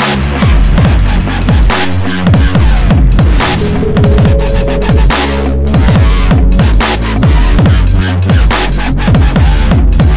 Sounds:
dubstep, music, electronic music

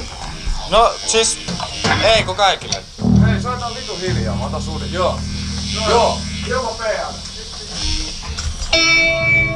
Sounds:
speech, music

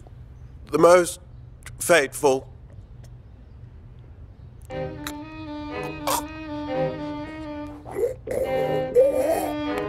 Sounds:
music, man speaking, speech

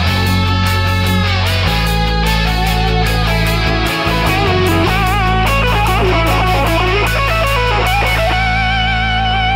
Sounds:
music

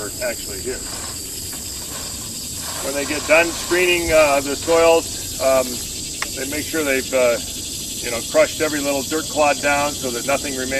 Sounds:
speech

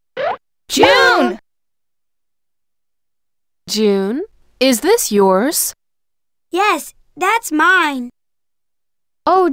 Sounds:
speech

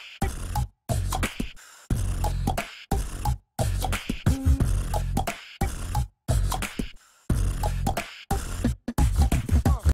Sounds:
music

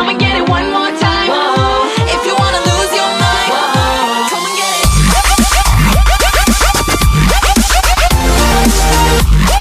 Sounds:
spray, music

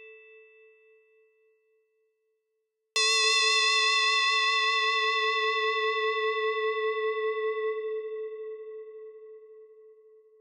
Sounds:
music, sampler

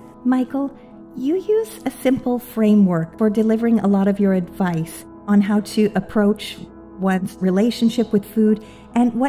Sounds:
music, speech

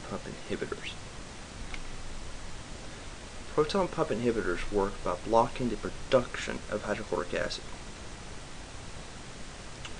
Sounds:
speech

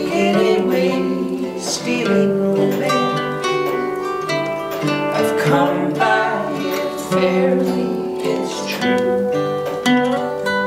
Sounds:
singing, music

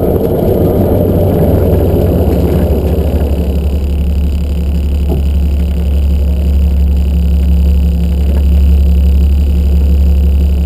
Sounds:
car, vehicle

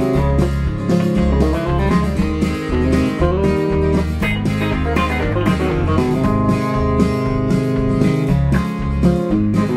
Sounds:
roll, field recording, music

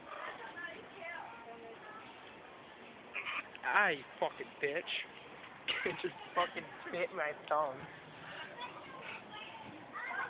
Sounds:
speech

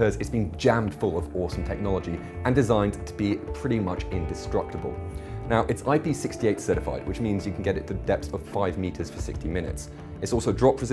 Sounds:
speech, music

